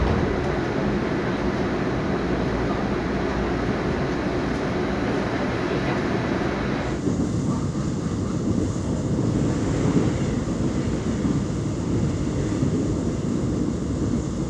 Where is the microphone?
on a subway train